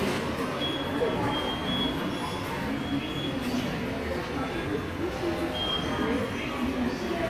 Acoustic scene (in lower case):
subway station